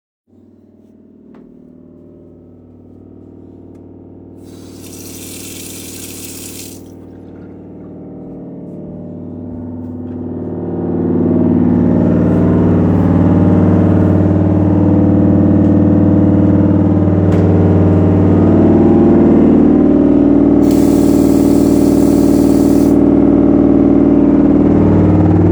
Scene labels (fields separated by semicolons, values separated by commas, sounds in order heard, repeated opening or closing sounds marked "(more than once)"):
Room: living room, bathroom; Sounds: footsteps, cutlery and dishes, running water, door